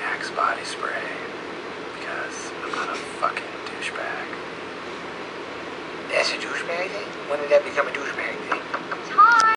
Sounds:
speech

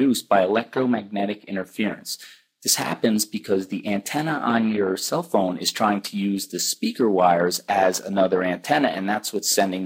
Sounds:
speech

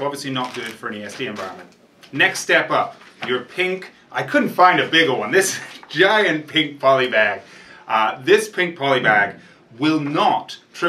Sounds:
speech

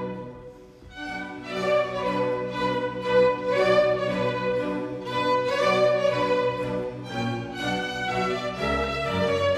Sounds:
fiddle
music
playing violin
musical instrument

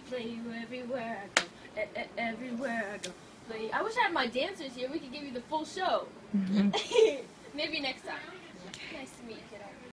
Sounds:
speech
female singing

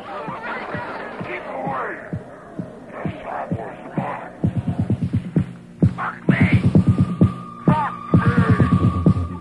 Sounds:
music
speech

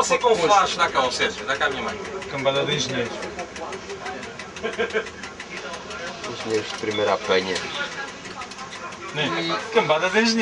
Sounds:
speech

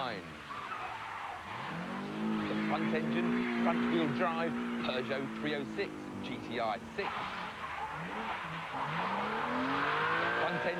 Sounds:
skidding
vehicle
car
auto racing

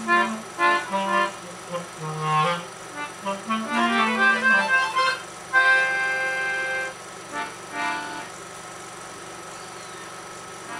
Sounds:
music
clarinet

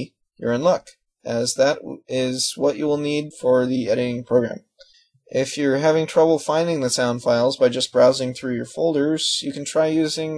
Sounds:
speech

